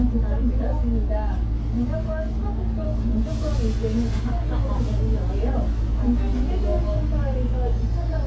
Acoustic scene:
bus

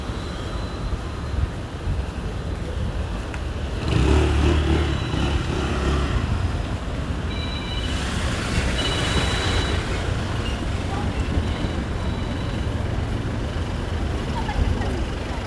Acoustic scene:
residential area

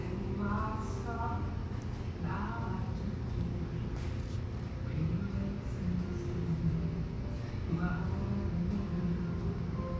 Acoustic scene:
cafe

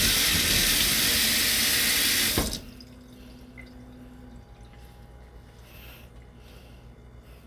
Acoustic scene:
kitchen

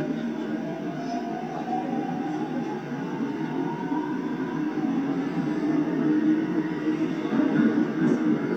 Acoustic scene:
subway train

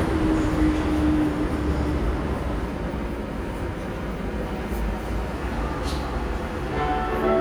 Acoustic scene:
subway station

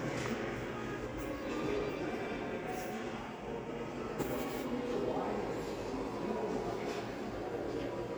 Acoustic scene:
crowded indoor space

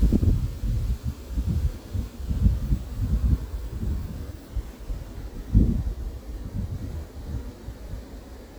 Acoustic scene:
park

